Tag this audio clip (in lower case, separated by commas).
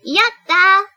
woman speaking, speech, human voice